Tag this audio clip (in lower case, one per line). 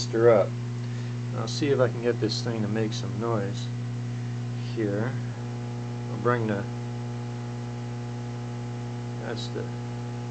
speech